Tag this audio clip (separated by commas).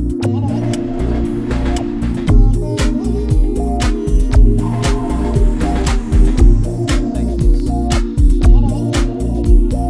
Music